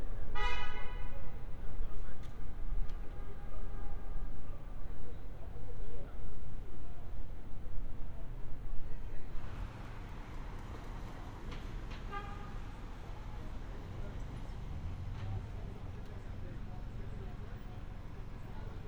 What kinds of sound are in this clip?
car horn